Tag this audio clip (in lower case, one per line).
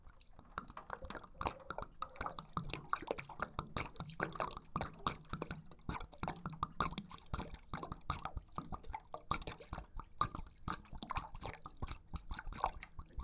liquid